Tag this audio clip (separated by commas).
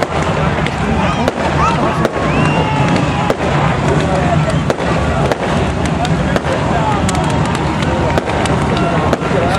Speech, Vehicle, Car